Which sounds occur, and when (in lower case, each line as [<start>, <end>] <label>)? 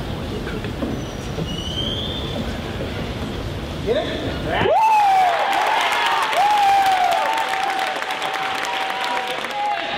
[0.00, 9.95] mechanisms
[0.40, 0.62] generic impact sounds
[0.87, 1.68] squeal
[1.41, 2.33] whistling
[3.78, 4.65] man speaking
[4.60, 5.51] whoop
[4.66, 9.95] crowd
[5.51, 9.95] applause
[6.27, 7.43] whoop
[9.47, 9.82] whoop